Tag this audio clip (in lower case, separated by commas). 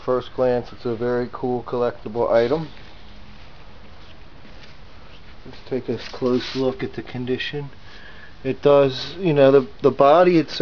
speech